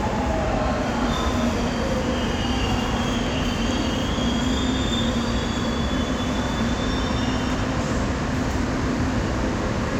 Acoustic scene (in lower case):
subway station